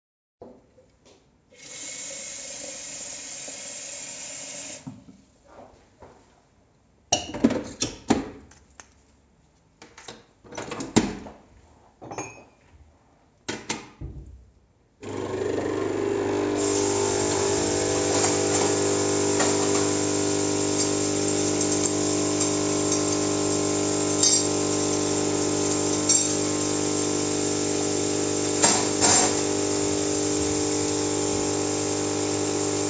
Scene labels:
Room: kitchen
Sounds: running water, wardrobe or drawer (more than once), cutlery and dishes, coffee machine

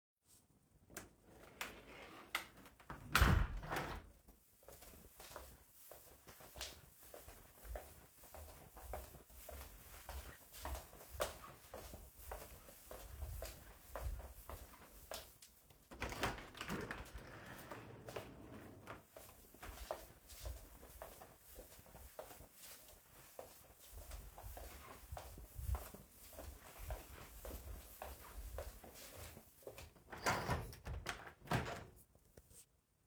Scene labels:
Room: bedroom, hallway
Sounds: window (more than once), footsteps

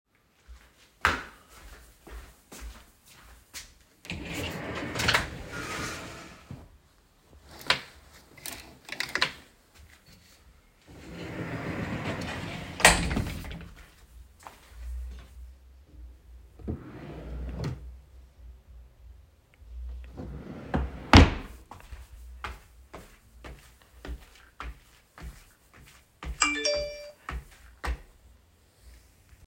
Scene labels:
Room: bedroom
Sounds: footsteps, wardrobe or drawer (more than once), phone ringing

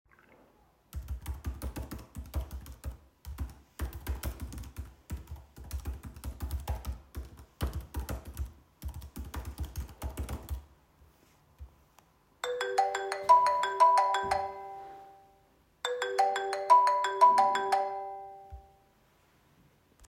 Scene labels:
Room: living room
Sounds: keyboard typing, phone ringing

